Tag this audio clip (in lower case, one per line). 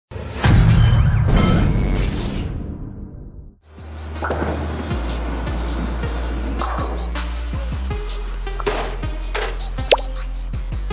bowling impact